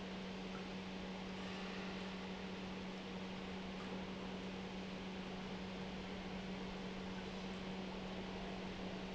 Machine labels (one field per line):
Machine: pump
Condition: normal